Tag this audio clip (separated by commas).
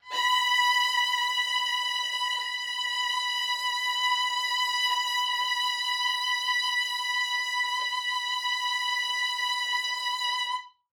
Music, Musical instrument, Bowed string instrument